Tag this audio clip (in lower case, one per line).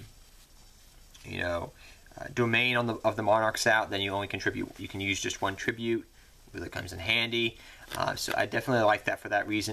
speech